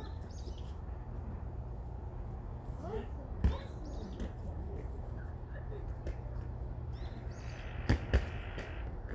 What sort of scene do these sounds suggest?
park